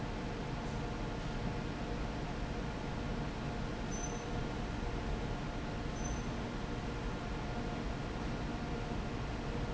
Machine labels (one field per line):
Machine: fan